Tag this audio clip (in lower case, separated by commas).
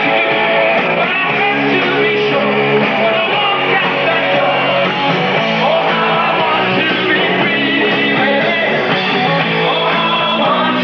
roll, music